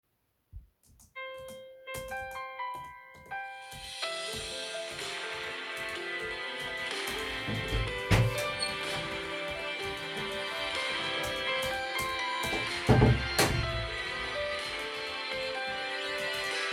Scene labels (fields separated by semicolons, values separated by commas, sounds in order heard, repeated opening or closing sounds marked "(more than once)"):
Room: office; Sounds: keyboard typing, phone ringing, door (more than once)